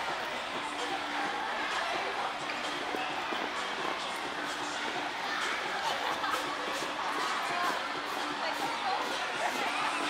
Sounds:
music, speech

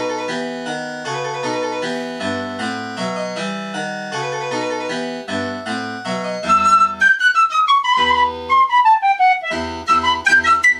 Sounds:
music, harpsichord

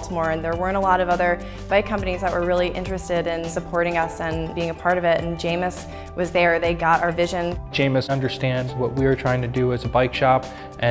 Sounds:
music, speech

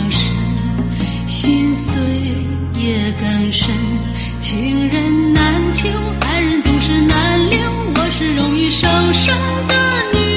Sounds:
music

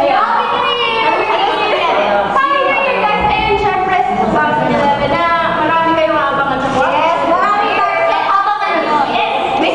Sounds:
speech

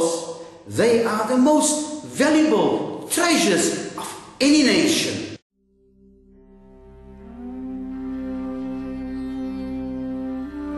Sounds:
music, speech

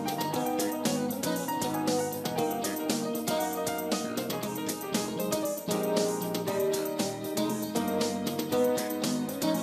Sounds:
music

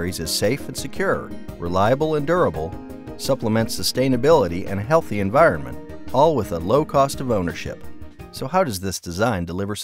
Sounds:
music, speech

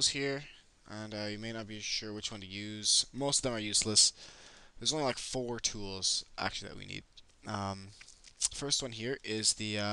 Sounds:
speech

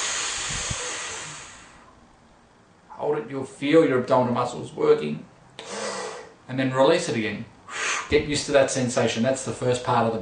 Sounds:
speech

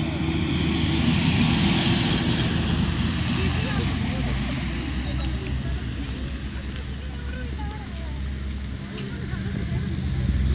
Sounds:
vehicle, speech

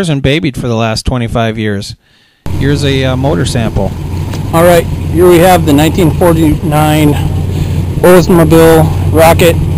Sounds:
car, speech, vehicle

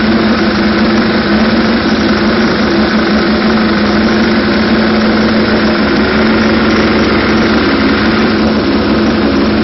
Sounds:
engine, idling, vehicle, heavy engine (low frequency)

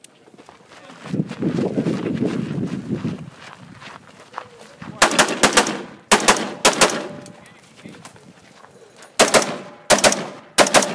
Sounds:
speech

